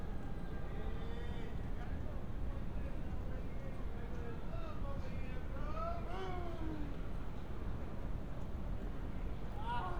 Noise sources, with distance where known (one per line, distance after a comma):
unidentified human voice, far